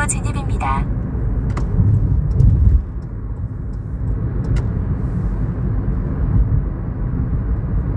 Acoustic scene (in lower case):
car